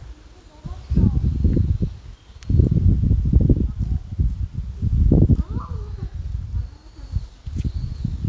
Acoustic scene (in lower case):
park